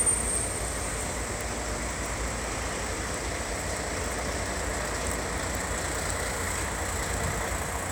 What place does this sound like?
street